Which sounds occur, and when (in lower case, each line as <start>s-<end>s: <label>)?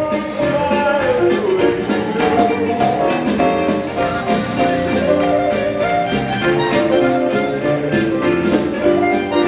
0.0s-2.9s: male singing
0.0s-9.4s: music